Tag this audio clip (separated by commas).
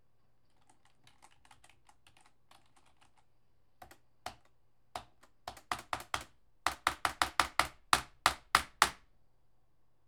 Typing, home sounds, Computer keyboard